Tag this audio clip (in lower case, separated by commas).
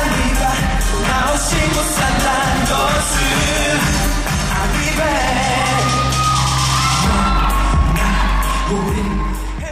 dance music, music